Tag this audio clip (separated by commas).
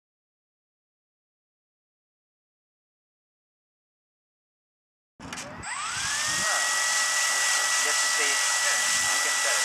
Speech, Silence, airplane